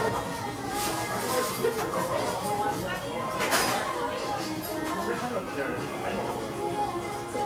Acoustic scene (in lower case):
restaurant